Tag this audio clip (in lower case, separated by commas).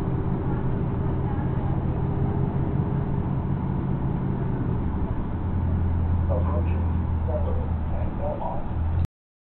speech